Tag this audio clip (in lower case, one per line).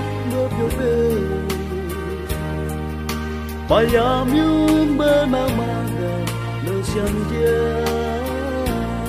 music
soundtrack music